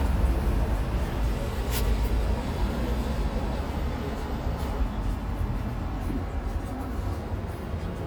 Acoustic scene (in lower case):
street